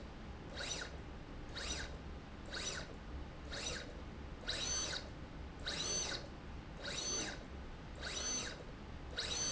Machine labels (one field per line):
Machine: slide rail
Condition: abnormal